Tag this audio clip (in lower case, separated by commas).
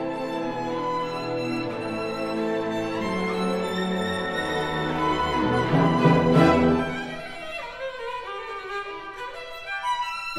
musical instrument, violin, music